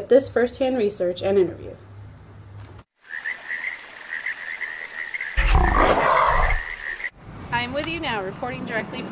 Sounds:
frog

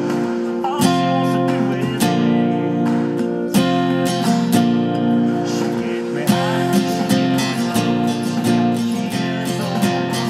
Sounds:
plucked string instrument, strum, musical instrument, acoustic guitar, music

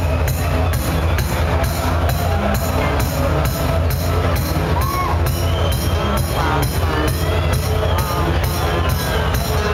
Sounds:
speech, electronic music, music, techno

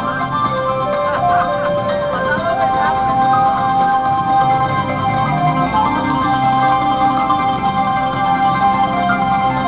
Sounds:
music

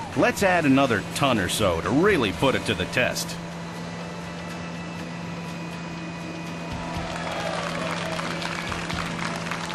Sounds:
speech, vehicle, music

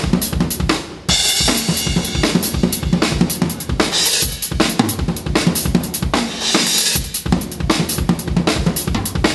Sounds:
bass drum, drum roll, rimshot, percussion, snare drum, drum kit, drum

